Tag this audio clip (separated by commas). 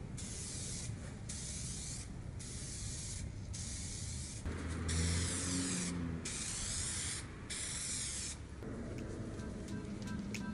spraying water